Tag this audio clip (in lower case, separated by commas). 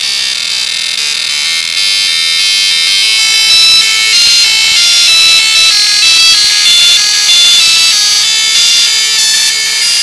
printer, music, inside a small room